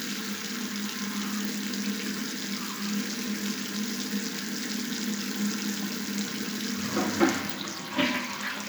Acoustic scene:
restroom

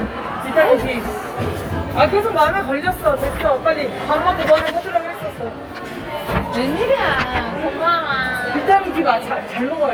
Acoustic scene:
crowded indoor space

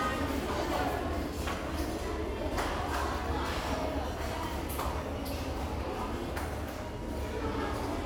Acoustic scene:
restaurant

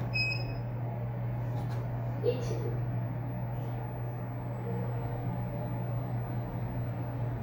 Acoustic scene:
elevator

